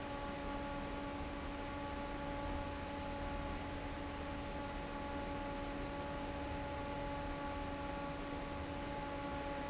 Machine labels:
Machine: fan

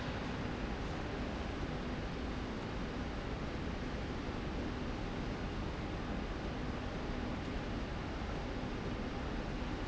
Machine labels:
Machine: slide rail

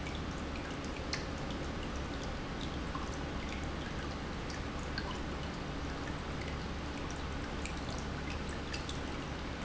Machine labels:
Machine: pump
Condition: normal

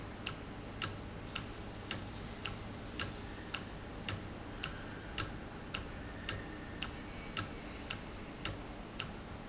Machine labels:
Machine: valve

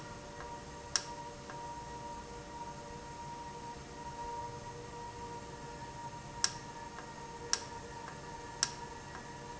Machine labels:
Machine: valve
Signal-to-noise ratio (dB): 0 dB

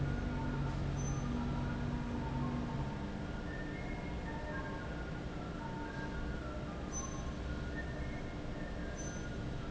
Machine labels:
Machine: fan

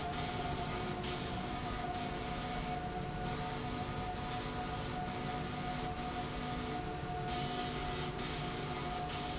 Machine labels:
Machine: slide rail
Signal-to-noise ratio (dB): -6 dB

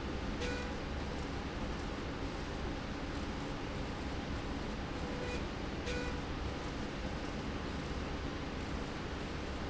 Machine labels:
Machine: slide rail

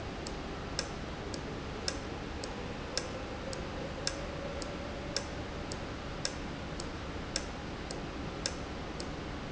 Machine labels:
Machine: valve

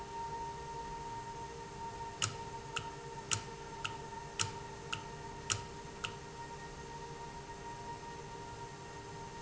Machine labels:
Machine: valve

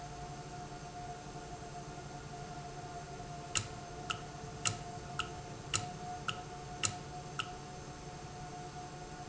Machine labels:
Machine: valve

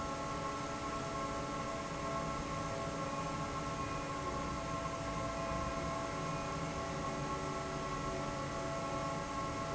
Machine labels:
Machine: fan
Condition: normal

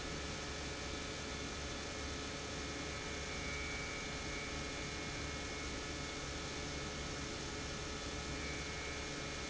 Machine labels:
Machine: pump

